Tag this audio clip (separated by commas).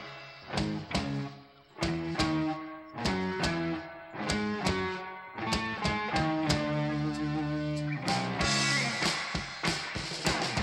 Music